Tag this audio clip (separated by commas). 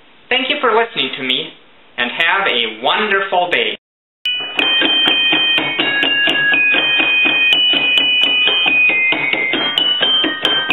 playing glockenspiel